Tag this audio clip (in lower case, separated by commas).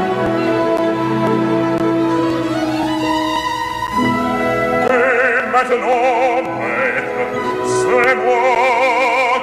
opera, classical music, music